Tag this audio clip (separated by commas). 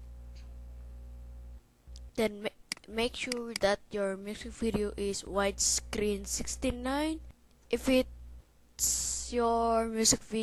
Speech